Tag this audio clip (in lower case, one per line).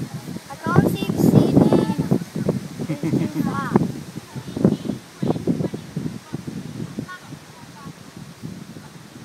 wind
wind noise (microphone)